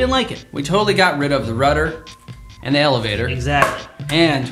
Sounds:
Music, Speech

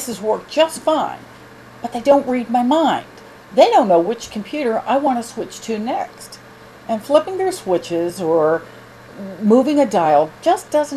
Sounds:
Speech

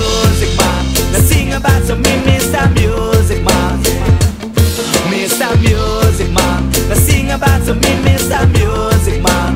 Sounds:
Music, Exciting music, Happy music, Blues, Rhythm and blues

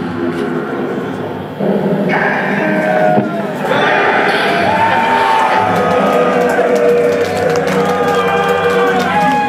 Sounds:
Applause, Crowd, inside a large room or hall, Music

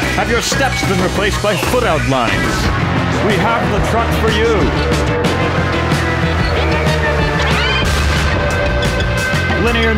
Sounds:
Music, Speech

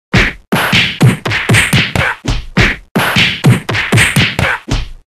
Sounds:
Whack, Sound effect

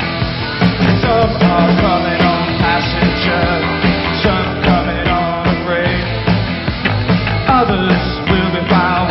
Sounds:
Music

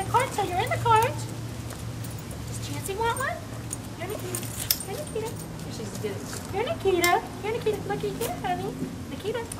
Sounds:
Speech

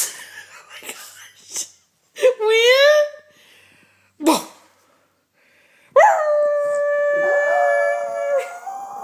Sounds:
Animal, inside a large room or hall, pets, canids, Howl, Dog, Speech

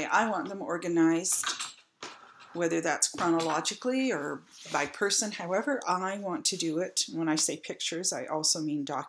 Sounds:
Speech

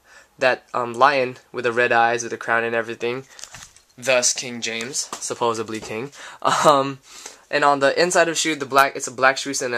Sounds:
Speech

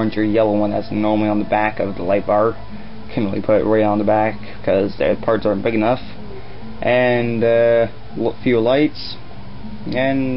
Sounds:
Music, Speech

